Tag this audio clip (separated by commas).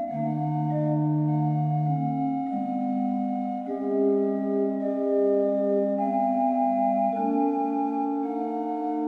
Keyboard (musical), Musical instrument, Music